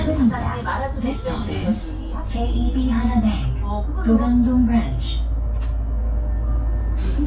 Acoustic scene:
bus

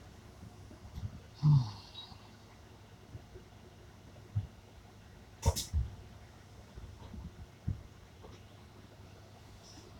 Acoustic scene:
bus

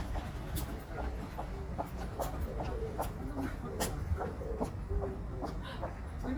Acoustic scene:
residential area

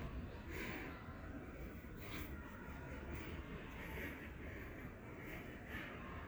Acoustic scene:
residential area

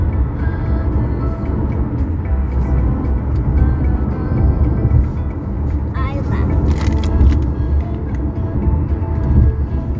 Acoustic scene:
car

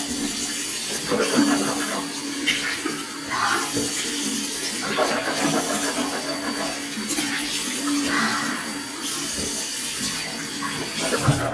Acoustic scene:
restroom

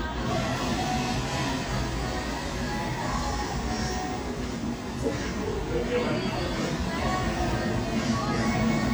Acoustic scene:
cafe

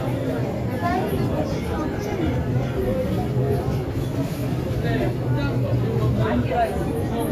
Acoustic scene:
crowded indoor space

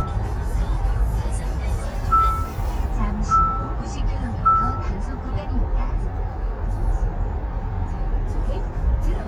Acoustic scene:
car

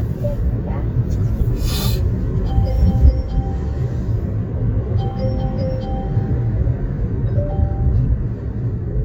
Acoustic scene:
car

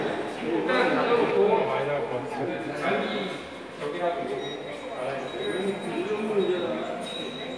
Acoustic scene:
subway station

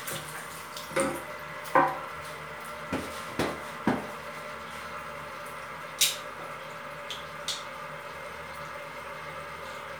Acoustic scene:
restroom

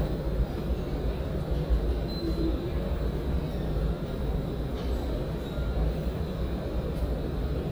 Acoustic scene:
subway station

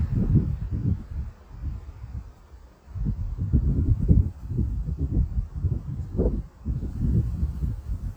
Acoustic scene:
residential area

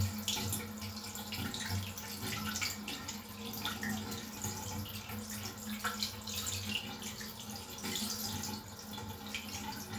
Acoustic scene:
restroom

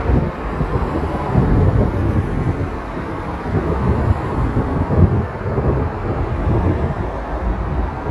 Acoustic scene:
street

